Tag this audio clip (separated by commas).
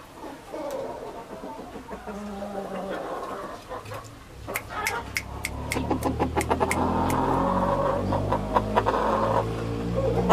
Animal, Chicken